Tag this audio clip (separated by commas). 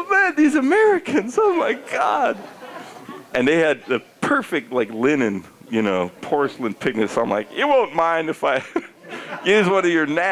Speech